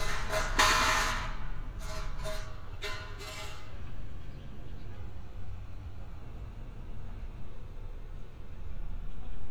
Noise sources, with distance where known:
non-machinery impact, near

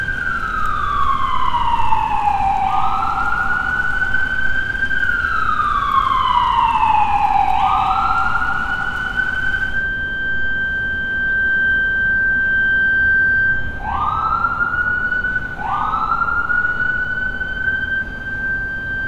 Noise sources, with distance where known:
siren

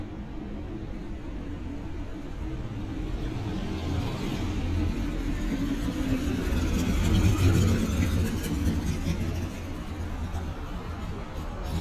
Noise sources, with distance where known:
medium-sounding engine, near

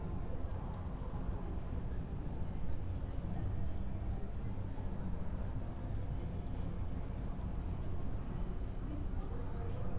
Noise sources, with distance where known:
music from an unclear source, far; unidentified human voice, far

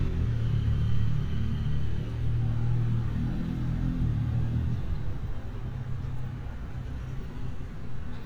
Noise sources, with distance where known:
medium-sounding engine, near

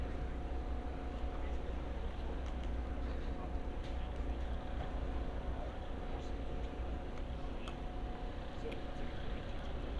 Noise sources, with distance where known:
engine of unclear size

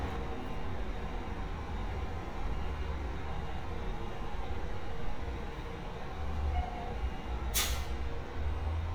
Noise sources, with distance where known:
engine of unclear size

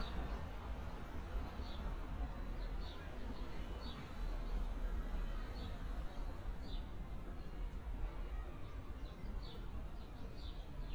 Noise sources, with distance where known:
background noise

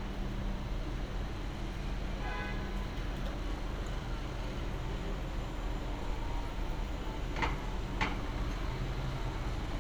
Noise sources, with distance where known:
engine of unclear size, near; non-machinery impact; car horn, far

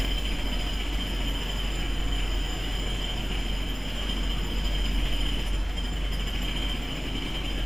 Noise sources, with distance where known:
jackhammer, near

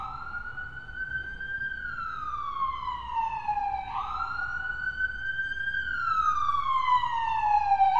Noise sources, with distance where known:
siren, near

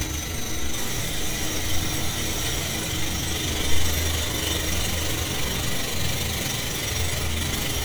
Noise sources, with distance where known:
jackhammer, near

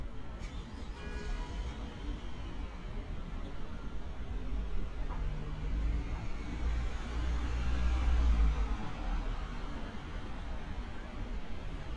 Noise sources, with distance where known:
engine of unclear size, near

